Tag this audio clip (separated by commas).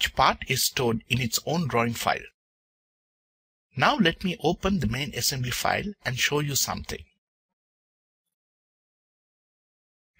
Speech